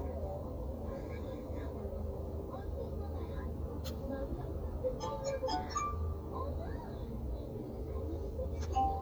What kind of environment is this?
car